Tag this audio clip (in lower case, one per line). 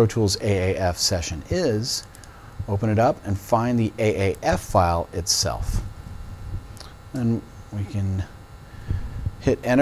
speech